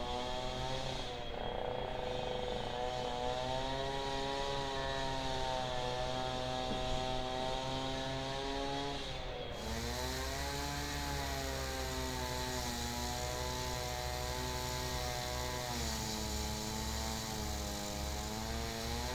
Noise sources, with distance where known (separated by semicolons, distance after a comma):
small or medium rotating saw